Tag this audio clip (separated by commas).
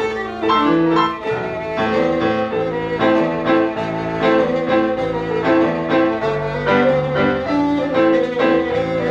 Music, fiddle, Musical instrument